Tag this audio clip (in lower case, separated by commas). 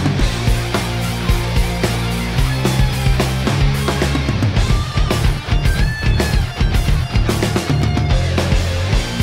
playing bass guitar, plucked string instrument, acoustic guitar, strum, musical instrument, music, guitar, bass guitar